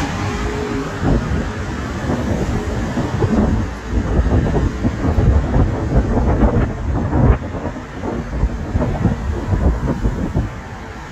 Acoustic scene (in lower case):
street